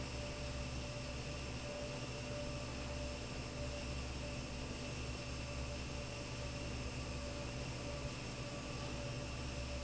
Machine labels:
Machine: fan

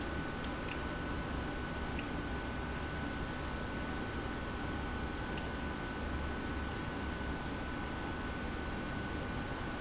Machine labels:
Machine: pump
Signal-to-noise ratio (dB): -6 dB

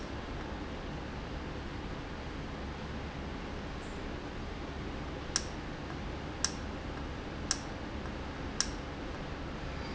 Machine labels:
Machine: valve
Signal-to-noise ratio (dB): -6 dB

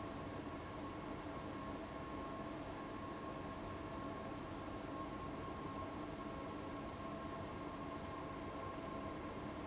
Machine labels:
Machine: fan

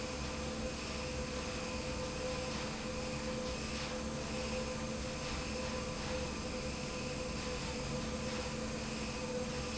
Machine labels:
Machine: fan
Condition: abnormal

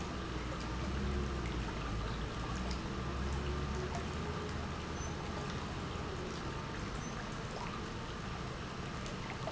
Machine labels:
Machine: pump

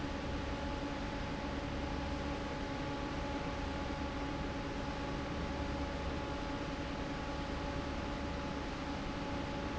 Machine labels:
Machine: fan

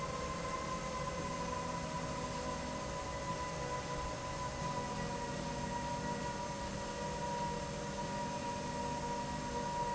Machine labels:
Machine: slide rail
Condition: normal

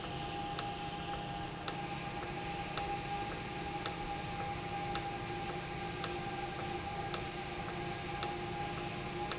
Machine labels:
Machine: valve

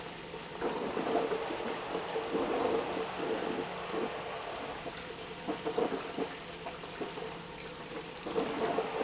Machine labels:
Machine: pump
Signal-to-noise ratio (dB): 6 dB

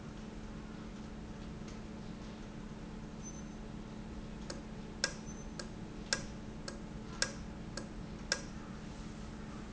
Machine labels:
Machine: valve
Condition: normal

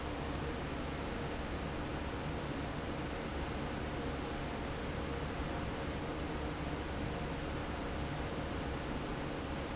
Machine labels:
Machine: fan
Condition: normal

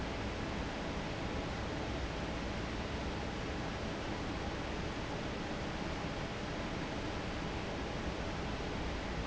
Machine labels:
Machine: fan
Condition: normal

